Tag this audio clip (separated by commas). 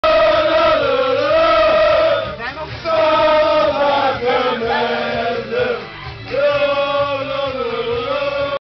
Male singing